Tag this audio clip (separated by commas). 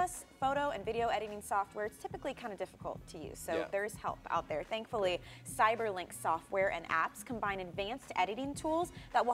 Music, Speech